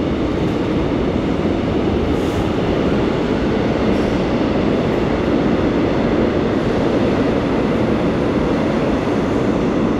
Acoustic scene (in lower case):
subway station